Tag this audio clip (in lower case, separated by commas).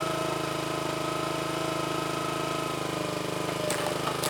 engine